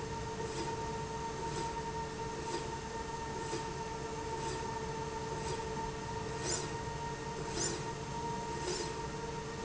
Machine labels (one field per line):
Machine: slide rail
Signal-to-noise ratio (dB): -6 dB